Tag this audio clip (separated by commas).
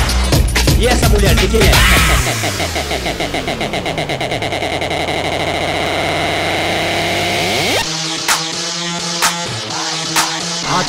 Speech, Music